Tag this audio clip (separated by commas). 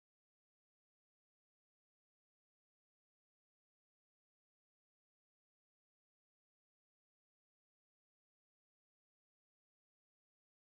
extending ladders